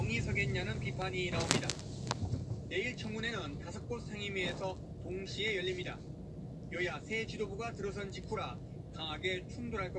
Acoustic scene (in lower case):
car